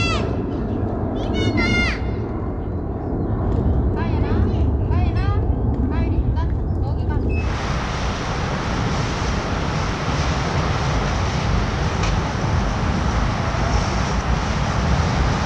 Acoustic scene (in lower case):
residential area